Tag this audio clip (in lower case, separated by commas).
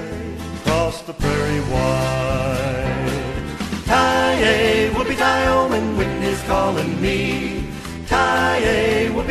music